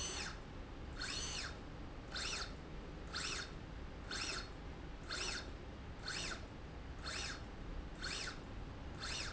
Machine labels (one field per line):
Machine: slide rail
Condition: normal